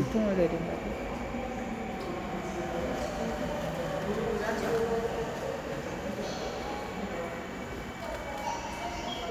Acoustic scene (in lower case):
subway station